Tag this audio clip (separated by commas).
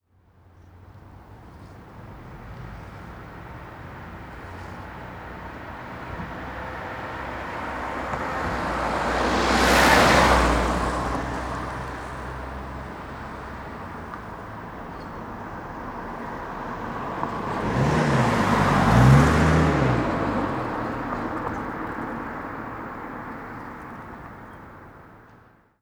Motor vehicle (road), Vehicle, Car, Car passing by